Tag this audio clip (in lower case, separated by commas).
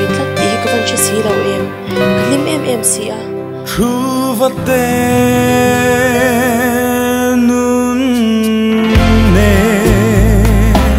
music, speech